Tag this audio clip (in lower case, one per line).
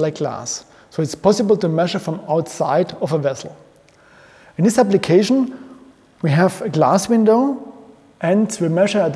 speech